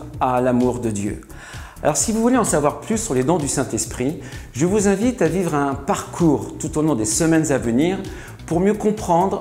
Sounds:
music, speech

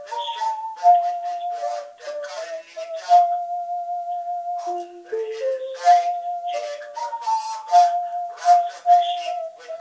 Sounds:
music, musical instrument, inside a small room, speech

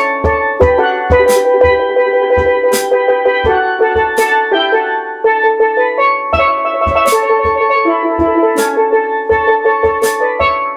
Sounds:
playing steelpan

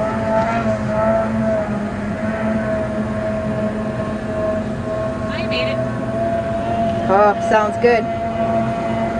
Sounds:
speech, speedboat, vehicle, water vehicle

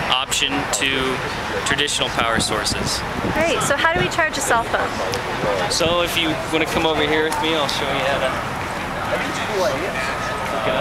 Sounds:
speech

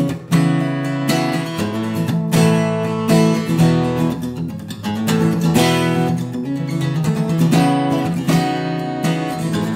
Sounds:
music

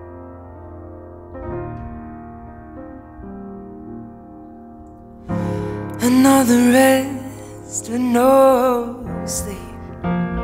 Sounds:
music

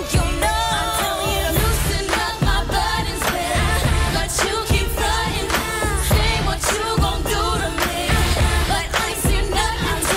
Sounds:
music of asia, music, pop music

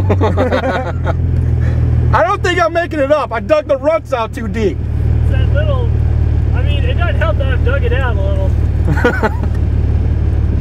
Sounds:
speech

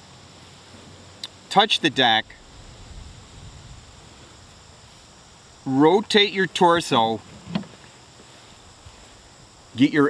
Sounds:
speech

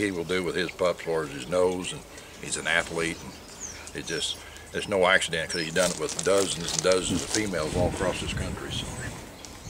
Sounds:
speech

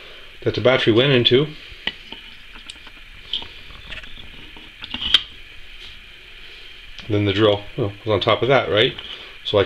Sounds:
speech

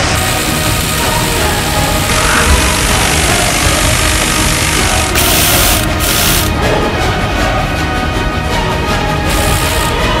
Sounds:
machine gun shooting

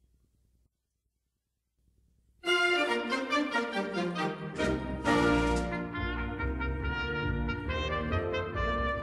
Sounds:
music, trumpet, trombone, brass instrument

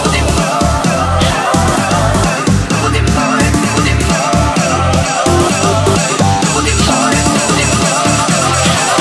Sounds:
music

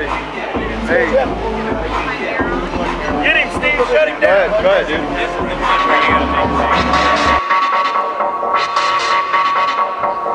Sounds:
speech, music

